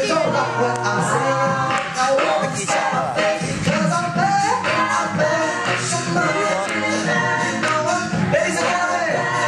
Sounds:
speech
music

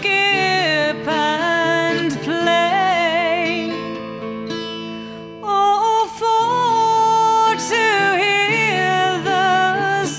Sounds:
music
plucked string instrument
guitar
strum
acoustic guitar
musical instrument

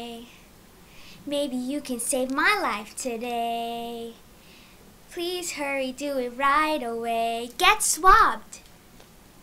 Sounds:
speech

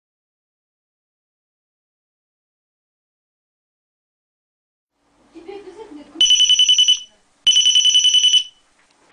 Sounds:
speech
honking

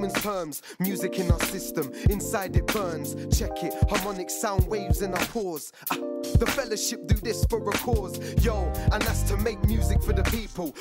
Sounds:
music

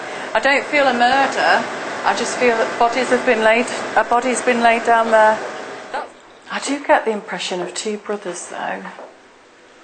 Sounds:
speech

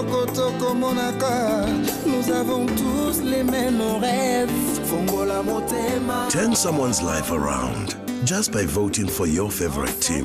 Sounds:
music
speech

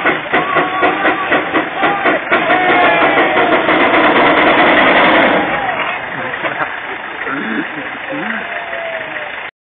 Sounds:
speech

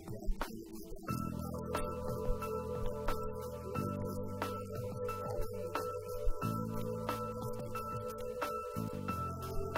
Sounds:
speech
music

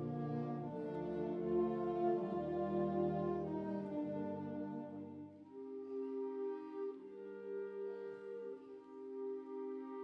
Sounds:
music

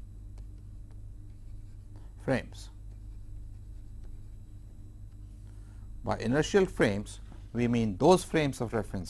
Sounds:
speech

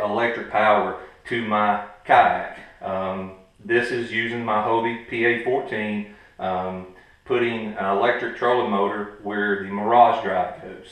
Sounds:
speech

